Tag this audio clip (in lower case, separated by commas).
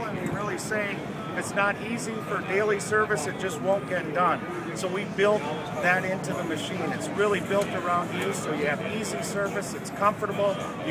speech